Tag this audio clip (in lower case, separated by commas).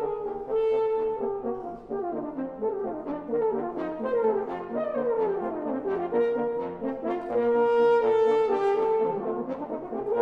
music, playing french horn, brass instrument, french horn